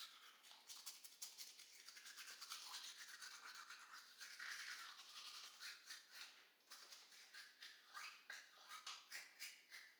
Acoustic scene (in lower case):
restroom